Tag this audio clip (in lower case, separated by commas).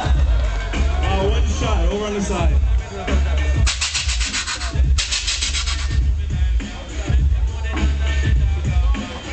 speech, scrape, music, scratching (performance technique)